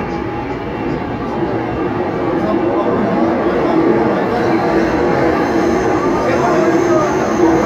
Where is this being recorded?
on a subway train